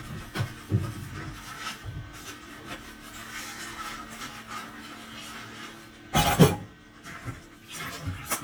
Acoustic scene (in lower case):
kitchen